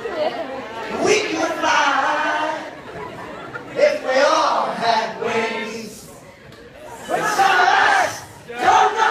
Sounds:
Singing, Speech, inside a large room or hall

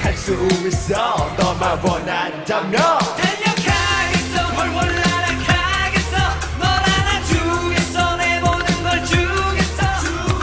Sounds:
Music

